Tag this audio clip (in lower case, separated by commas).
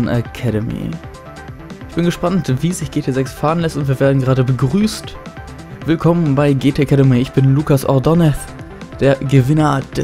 music, speech